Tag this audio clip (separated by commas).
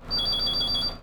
Alarm, Vehicle, Bus, Motor vehicle (road)